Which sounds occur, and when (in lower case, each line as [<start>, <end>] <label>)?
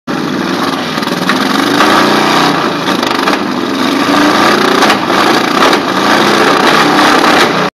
[0.00, 7.57] engine
[7.30, 7.39] generic impact sounds